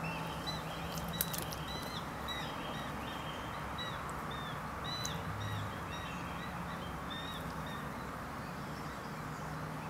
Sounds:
animal
outside, rural or natural

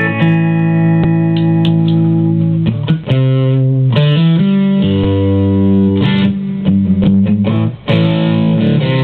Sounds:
guitar
effects unit
music

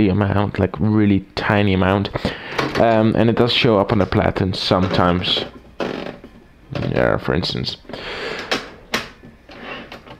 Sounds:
speech

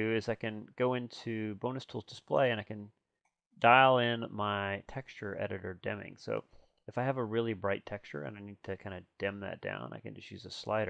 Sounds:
speech

